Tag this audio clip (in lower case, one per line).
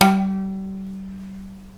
musical instrument
bowed string instrument
music